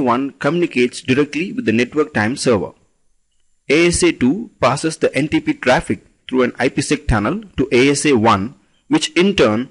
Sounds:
Speech

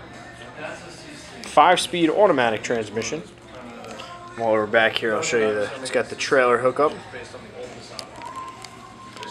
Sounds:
Music, Speech

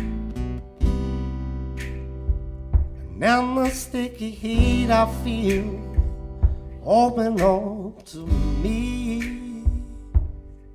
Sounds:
Music

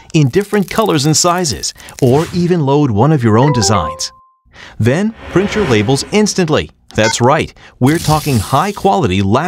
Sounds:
Speech

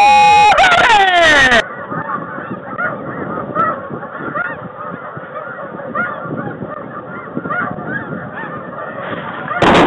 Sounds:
Goose, Honk, Fowl

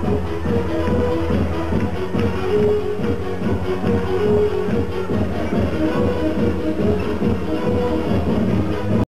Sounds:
Music, Sound effect

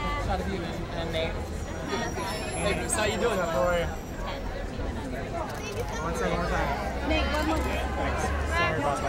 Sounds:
Speech

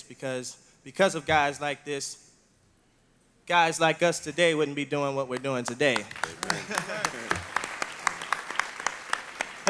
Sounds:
Speech

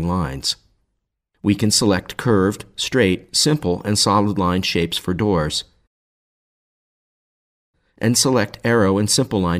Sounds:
Speech

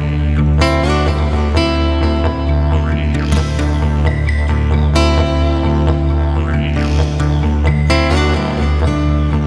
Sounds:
Music, Country

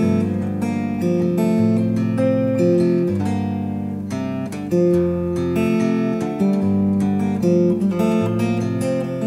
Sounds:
Musical instrument, Plucked string instrument, Music, Strum, Guitar

